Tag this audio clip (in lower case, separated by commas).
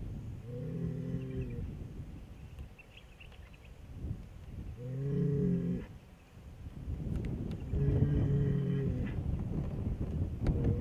bull bellowing